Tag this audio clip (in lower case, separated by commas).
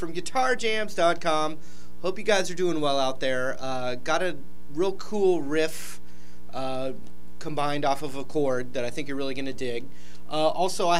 speech